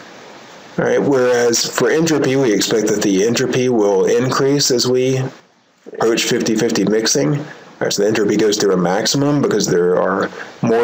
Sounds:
Speech

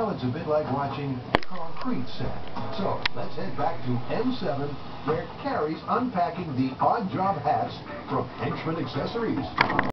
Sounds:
Music, Speech

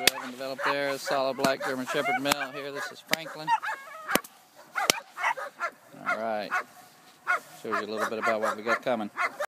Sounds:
Bow-wow, Speech

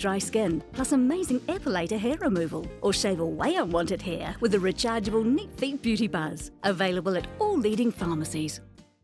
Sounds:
Music, Speech

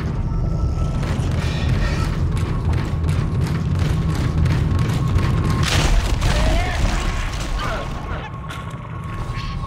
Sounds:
Speech

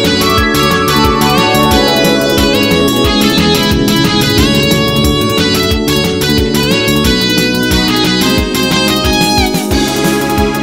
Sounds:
Music

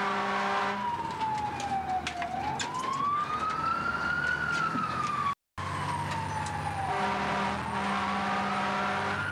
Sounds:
Vehicle

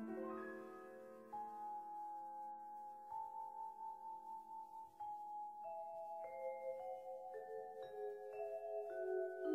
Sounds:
Musical instrument, Music, Piano, Percussion, Keyboard (musical), Vibraphone

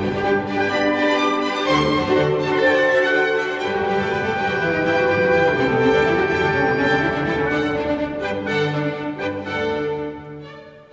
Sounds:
fiddle, Musical instrument, Music

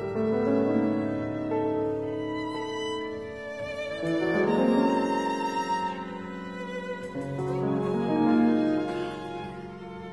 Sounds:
Musical instrument, Bowed string instrument, Piano, Classical music, fiddle, Music, Cello

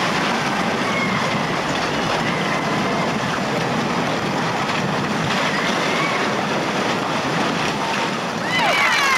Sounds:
outside, rural or natural, Speech

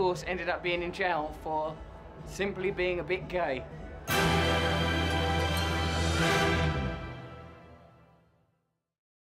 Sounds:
Music, Speech, Male speech

